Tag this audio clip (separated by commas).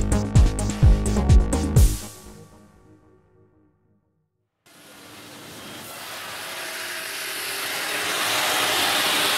Music